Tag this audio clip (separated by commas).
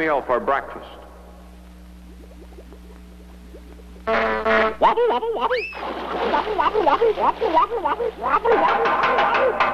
Speech